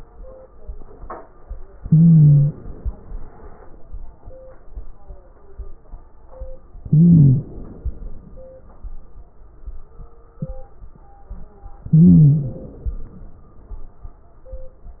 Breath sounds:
1.75-2.58 s: wheeze
1.75-2.85 s: inhalation
6.86-7.54 s: wheeze
6.86-7.96 s: inhalation
11.87-12.64 s: wheeze
11.87-12.93 s: inhalation

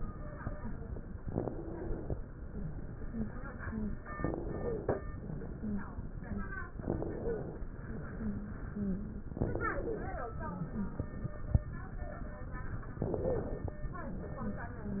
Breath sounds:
1.20-2.13 s: inhalation
2.45-2.73 s: wheeze
3.02-3.30 s: wheeze
3.61-3.89 s: wheeze
4.16-5.09 s: inhalation
4.55-4.95 s: wheeze
5.56-5.84 s: wheeze
6.21-6.49 s: wheeze
6.75-7.69 s: inhalation
7.17-7.57 s: wheeze
8.12-8.62 s: wheeze
8.75-9.24 s: wheeze
9.34-10.27 s: inhalation
9.71-10.11 s: wheeze
10.49-10.99 s: wheeze
12.98-13.83 s: inhalation
13.21-13.53 s: wheeze

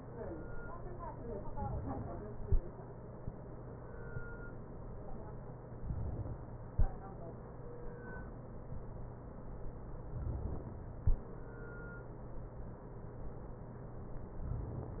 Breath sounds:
5.78-6.74 s: inhalation
10.16-11.00 s: inhalation

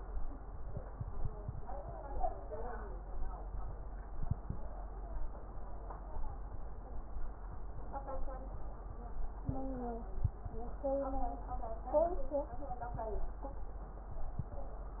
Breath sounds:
9.44-10.10 s: wheeze

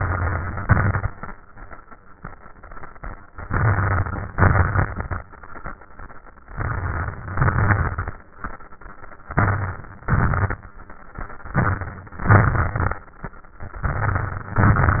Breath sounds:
0.00-0.63 s: crackles
0.00-0.65 s: inhalation
0.62-1.16 s: exhalation
0.64-1.19 s: crackles
3.42-4.29 s: inhalation
3.42-4.29 s: crackles
4.34-5.21 s: exhalation
4.34-5.21 s: crackles
6.52-7.37 s: crackles
6.53-7.38 s: inhalation
7.37-8.21 s: exhalation
7.37-8.21 s: crackles
9.34-10.07 s: inhalation
9.34-10.07 s: crackles
10.10-10.68 s: exhalation
10.10-10.68 s: crackles
11.57-12.28 s: inhalation
11.57-12.28 s: crackles
12.31-13.03 s: exhalation
12.31-13.03 s: crackles
13.88-14.60 s: inhalation
13.88-14.60 s: crackles
14.62-15.00 s: exhalation
14.62-15.00 s: crackles

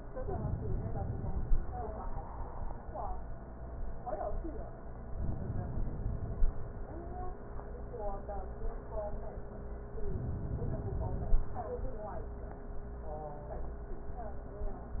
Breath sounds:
0.24-1.64 s: inhalation
5.18-6.47 s: inhalation
10.10-11.39 s: inhalation

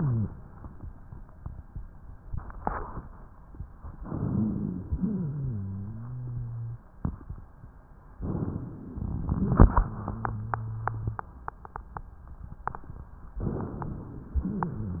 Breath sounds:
3.97-4.84 s: inhalation
3.97-4.84 s: rhonchi
4.86-6.89 s: rhonchi
8.23-8.98 s: inhalation
9.66-11.25 s: rhonchi
13.41-14.38 s: inhalation

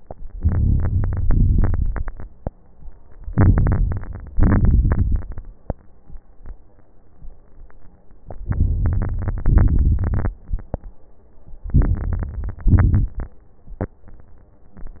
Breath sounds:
0.36-1.23 s: inhalation
0.36-1.23 s: crackles
1.25-2.24 s: exhalation
1.25-2.24 s: crackles
3.33-4.31 s: inhalation
3.33-4.31 s: crackles
4.33-5.32 s: exhalation
4.33-5.32 s: crackles
8.46-9.44 s: inhalation
8.46-9.44 s: crackles
9.46-10.41 s: exhalation
9.46-10.41 s: crackles
11.67-12.65 s: crackles
11.69-12.73 s: inhalation
12.71-13.36 s: exhalation
12.71-13.36 s: crackles

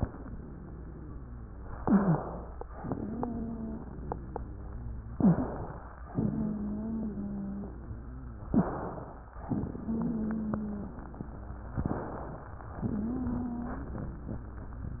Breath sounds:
0.00-1.70 s: wheeze
1.76-2.36 s: wheeze
1.76-2.62 s: inhalation
2.68-5.10 s: exhalation
2.82-5.10 s: wheeze
5.14-5.54 s: wheeze
5.14-6.00 s: inhalation
6.10-8.44 s: exhalation
6.10-8.44 s: wheeze
8.46-8.84 s: wheeze
8.46-9.26 s: inhalation
9.44-11.70 s: exhalation
9.44-11.70 s: wheeze
11.78-12.50 s: inhalation
12.82-14.46 s: exhalation
12.82-14.46 s: wheeze

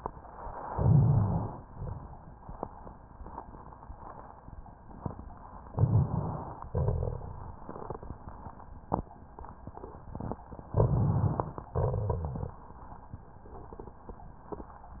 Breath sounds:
0.71-1.62 s: inhalation
1.62-2.96 s: exhalation
1.62-2.96 s: crackles
5.72-6.70 s: inhalation
5.72-6.70 s: rhonchi
6.70-8.72 s: exhalation
6.70-8.72 s: crackles
10.75-11.72 s: inhalation
10.75-11.72 s: crackles
11.71-12.55 s: rhonchi
11.74-12.55 s: crackles
11.74-12.58 s: exhalation

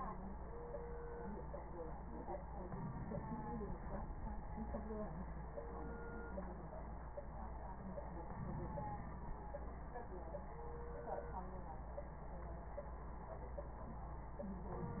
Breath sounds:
2.65-3.85 s: inhalation
3.80-4.92 s: exhalation
8.36-9.41 s: inhalation

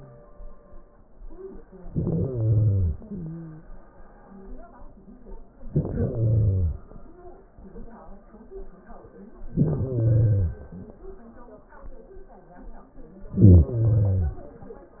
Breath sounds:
1.90-2.96 s: inhalation
2.94-3.84 s: exhalation
2.94-3.84 s: wheeze
5.64-6.83 s: inhalation
9.47-10.66 s: inhalation
13.27-14.45 s: inhalation

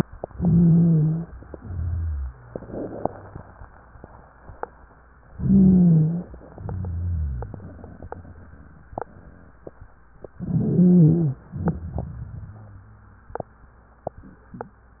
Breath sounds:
0.28-1.31 s: inhalation
0.28-1.31 s: wheeze
1.47-2.44 s: exhalation
1.47-2.44 s: wheeze
5.30-6.35 s: inhalation
5.30-6.35 s: wheeze
6.51-7.90 s: wheeze
6.51-8.47 s: exhalation
10.32-11.45 s: inhalation
10.32-11.45 s: wheeze
11.55-13.37 s: exhalation
11.55-13.37 s: wheeze

